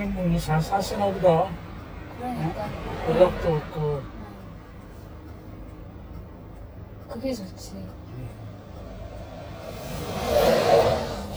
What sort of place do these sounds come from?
car